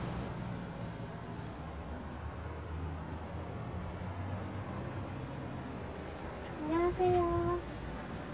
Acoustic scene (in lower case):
residential area